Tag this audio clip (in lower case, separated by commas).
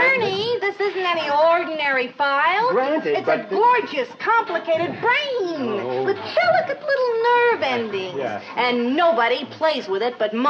speech, music